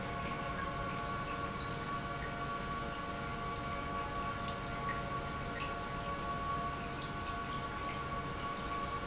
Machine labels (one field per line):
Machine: pump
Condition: normal